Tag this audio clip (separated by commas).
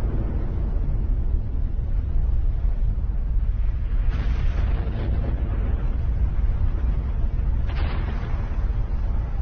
volcano explosion